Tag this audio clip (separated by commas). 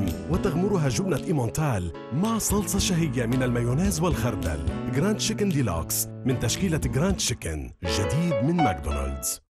Speech, Music